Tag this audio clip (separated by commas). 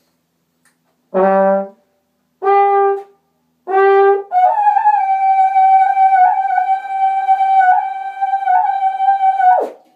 Trombone, Brass instrument